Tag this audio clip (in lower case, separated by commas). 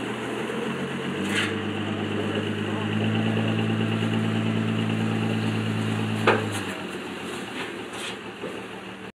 vehicle, speech